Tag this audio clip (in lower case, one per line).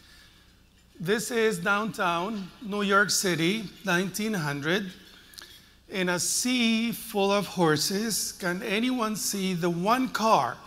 speech